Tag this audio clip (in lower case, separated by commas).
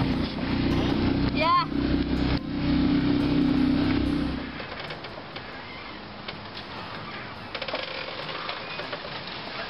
gears, mechanisms, pulleys